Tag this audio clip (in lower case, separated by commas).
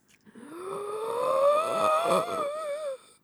respiratory sounds, breathing